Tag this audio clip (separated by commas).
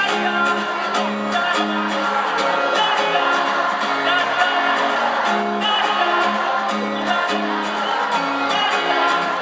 Music